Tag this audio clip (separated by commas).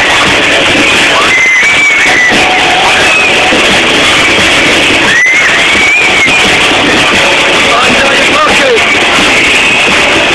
Speech